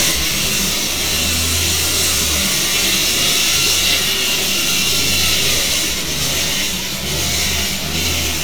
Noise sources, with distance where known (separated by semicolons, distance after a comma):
unidentified impact machinery, near; unidentified powered saw, near